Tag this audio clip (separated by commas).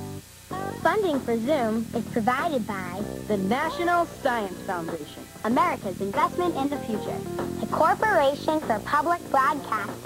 Music, swoosh, Speech